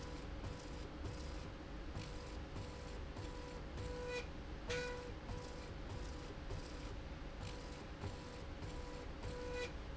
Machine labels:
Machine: slide rail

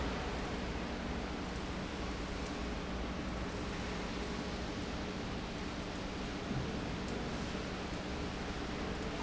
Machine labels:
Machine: pump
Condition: normal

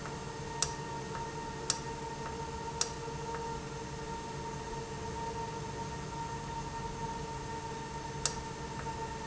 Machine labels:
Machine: valve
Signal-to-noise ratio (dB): -6 dB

